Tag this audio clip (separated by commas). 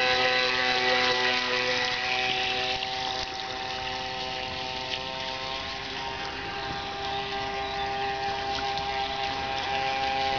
Motorboat, Vehicle